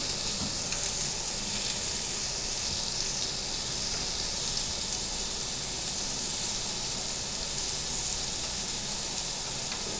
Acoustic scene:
restaurant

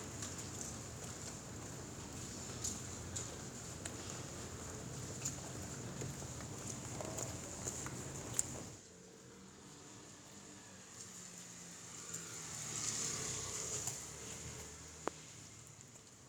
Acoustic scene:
residential area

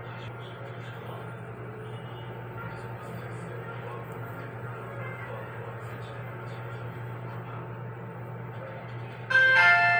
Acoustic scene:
elevator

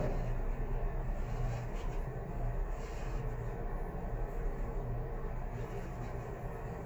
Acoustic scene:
elevator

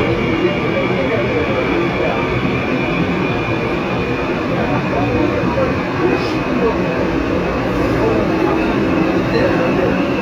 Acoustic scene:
subway train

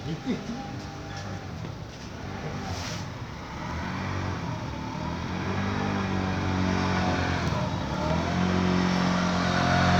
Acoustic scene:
residential area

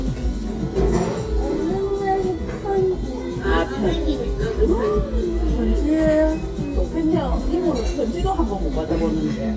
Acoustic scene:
restaurant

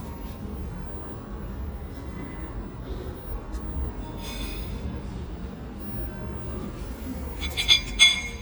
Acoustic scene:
cafe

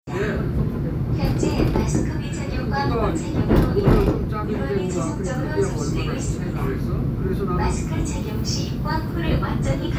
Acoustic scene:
subway train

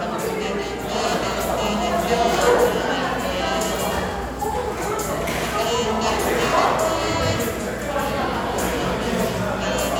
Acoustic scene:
cafe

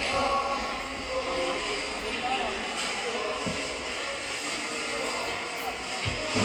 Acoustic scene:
subway station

